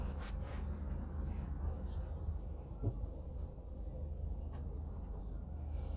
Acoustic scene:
bus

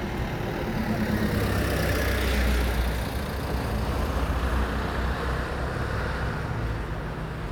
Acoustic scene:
residential area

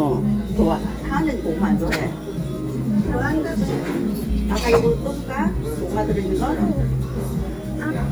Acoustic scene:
restaurant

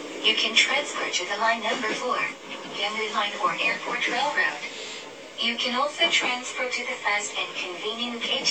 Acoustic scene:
subway train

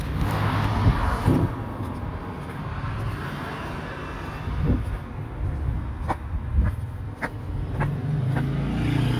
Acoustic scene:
residential area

